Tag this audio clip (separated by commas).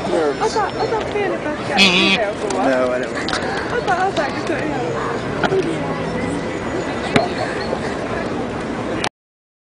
Speech